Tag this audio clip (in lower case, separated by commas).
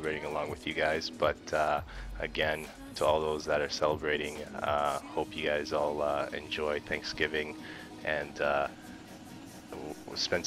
speech, music